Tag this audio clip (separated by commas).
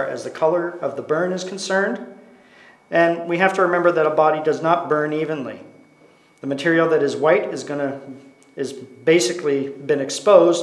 inside a small room, Speech